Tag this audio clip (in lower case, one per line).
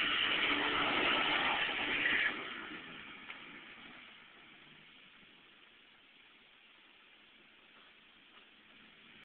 truck
vehicle